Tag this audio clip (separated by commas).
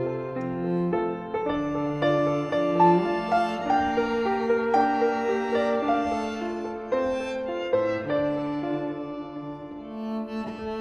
fiddle, Cello, Musical instrument, Music